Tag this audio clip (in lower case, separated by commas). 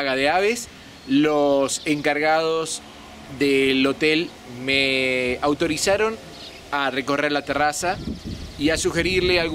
speech, outside, rural or natural, bird